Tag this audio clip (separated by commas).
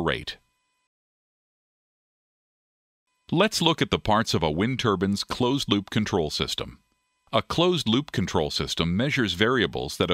Speech